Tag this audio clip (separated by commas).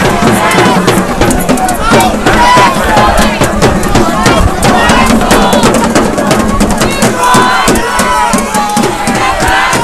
Music, Speech